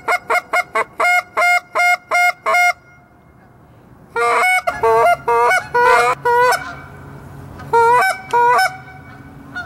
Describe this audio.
Duck's are quacking and honking